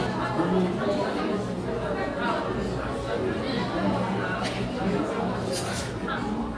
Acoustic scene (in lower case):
crowded indoor space